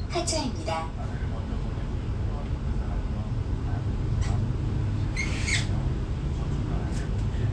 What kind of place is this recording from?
bus